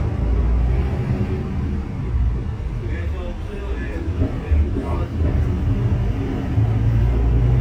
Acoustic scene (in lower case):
bus